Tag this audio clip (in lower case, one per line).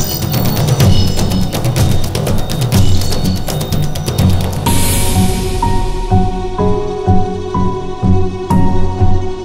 rattle
music